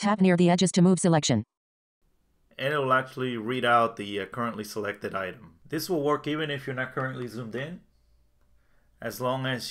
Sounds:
speech

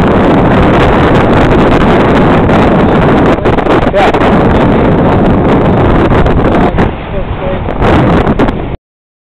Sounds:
sailing, speech, sailboat

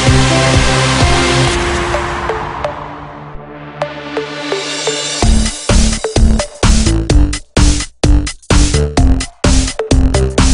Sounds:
electronic dance music, music

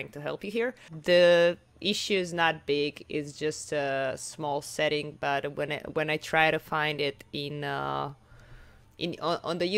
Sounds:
speech

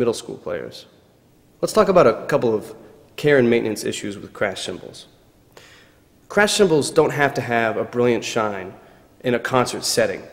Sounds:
speech

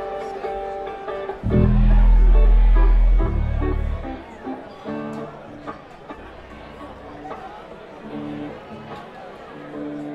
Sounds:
music, speech

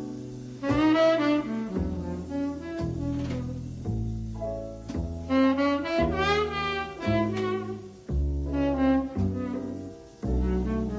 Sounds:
playing saxophone, brass instrument, saxophone

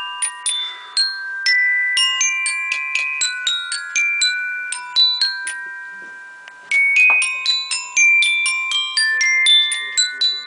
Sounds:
marimba, musical instrument, music

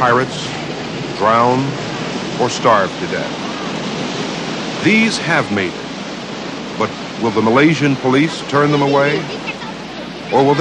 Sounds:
waves, ocean

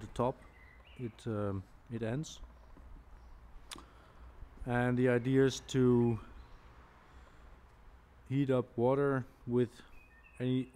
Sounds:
speech

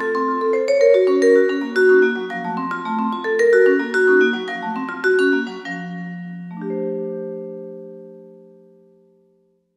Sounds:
playing vibraphone

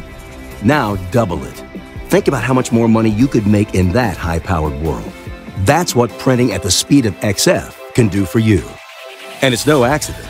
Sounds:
music, speech

